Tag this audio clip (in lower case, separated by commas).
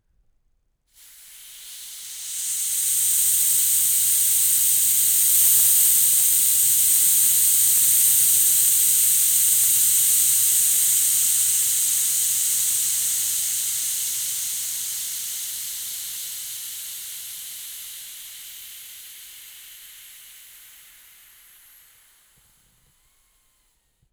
hiss